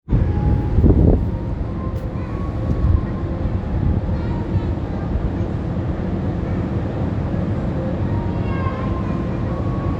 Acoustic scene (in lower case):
park